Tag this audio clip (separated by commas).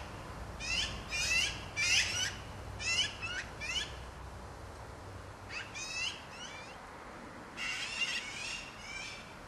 magpie calling